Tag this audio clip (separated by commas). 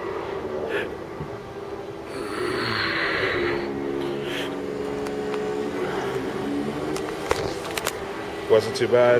inside a large room or hall, Speech, Music